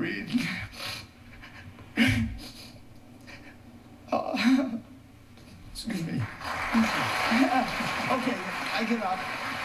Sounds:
Speech, sobbing

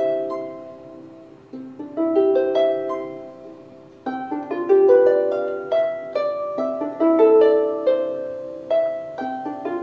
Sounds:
Harp, playing harp, Pizzicato

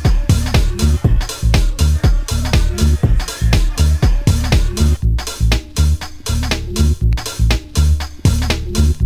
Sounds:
Music, Funk

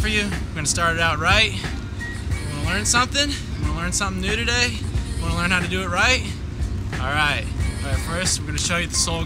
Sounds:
Music, Speech

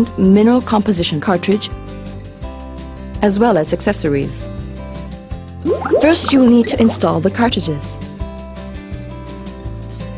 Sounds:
Speech, Music

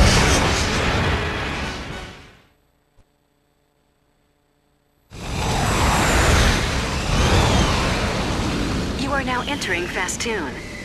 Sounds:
Speech

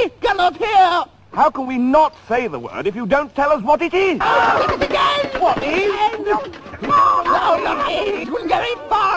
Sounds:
Speech

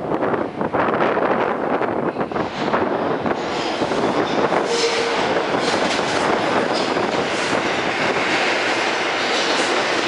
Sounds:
Subway, Vehicle, Train

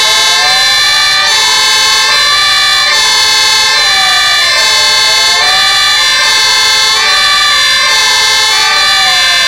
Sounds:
fire truck siren

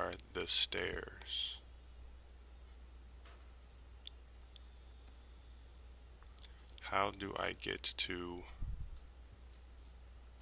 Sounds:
Speech

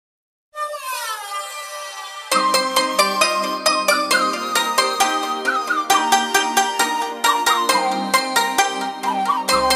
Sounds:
Music

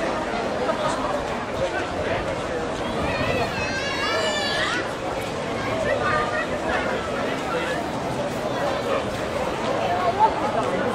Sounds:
Speech

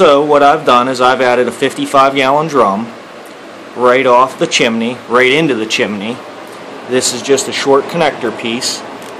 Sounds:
Speech

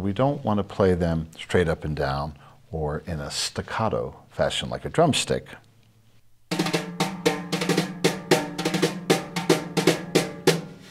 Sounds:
Speech, Music

